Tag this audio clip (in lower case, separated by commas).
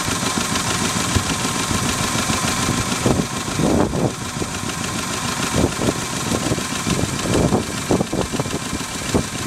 engine, outside, rural or natural, vehicle, boat